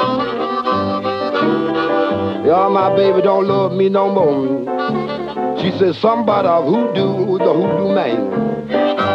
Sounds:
music, accordion

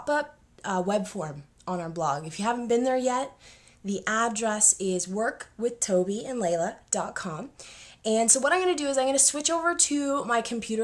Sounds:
speech

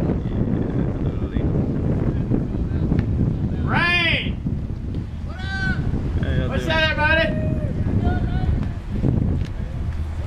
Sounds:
vehicle, speech, water vehicle

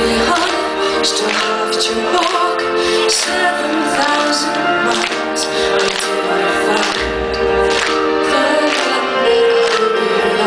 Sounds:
music

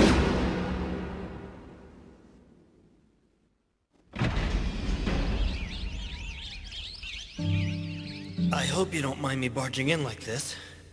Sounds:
music, speech

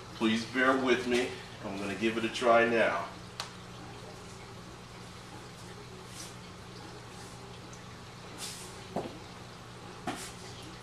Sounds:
speech

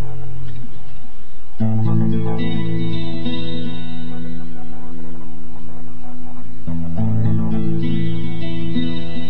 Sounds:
outside, rural or natural, music

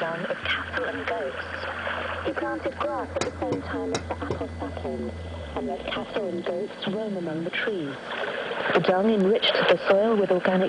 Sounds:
radio, speech

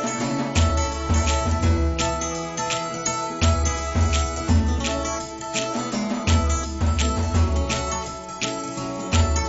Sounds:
music

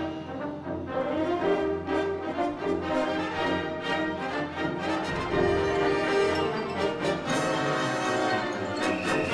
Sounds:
music

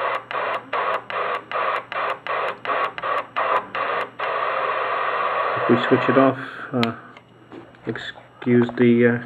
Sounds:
radio, electronic tuner, speech

